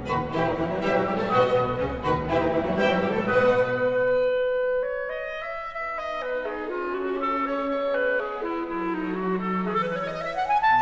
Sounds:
playing clarinet

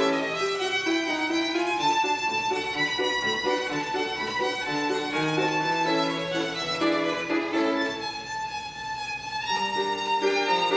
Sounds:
musical instrument
music
violin

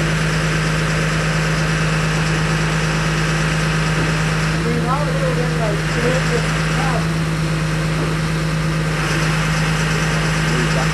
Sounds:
speech

